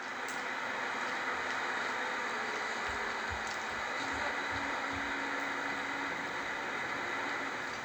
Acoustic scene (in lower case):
bus